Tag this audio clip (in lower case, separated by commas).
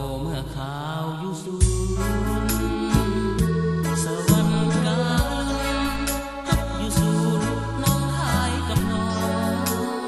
music